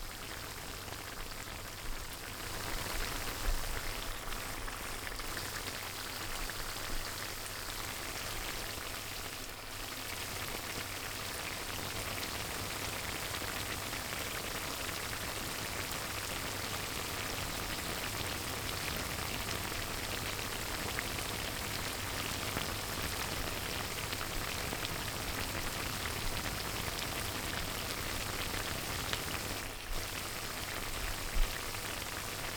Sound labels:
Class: cooking